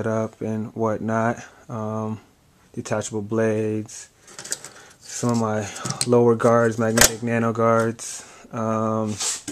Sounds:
speech

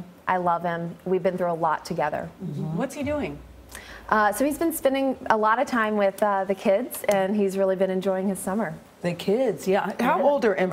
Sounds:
woman speaking

